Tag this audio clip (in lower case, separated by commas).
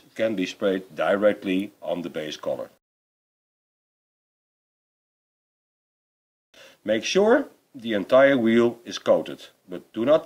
spray, speech